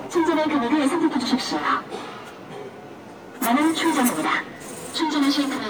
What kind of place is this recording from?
subway station